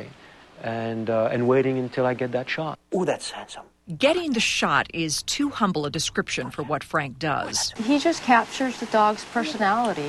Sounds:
speech

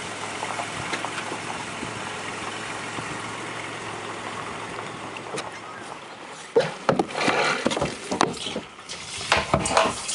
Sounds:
boat

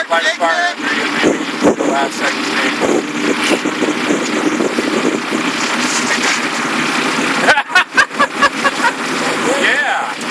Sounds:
truck, vehicle, speech

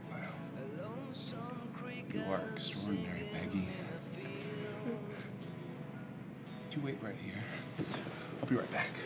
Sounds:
music, speech

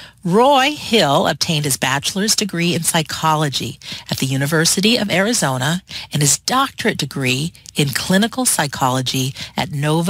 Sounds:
speech

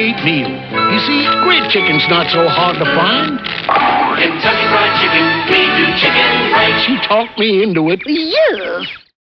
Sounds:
music, speech

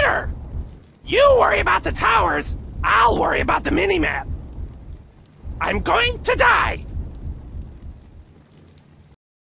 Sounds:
speech

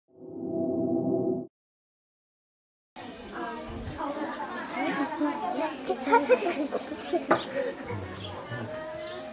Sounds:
outside, rural or natural, speech

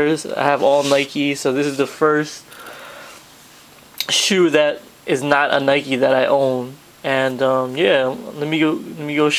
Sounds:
speech

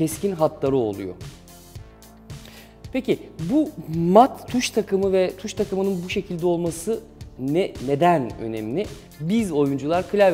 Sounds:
music, speech

